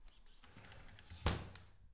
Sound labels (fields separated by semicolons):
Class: window; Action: closing; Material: glass